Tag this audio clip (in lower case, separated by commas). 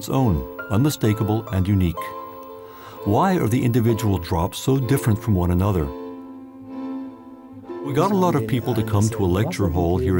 speech, music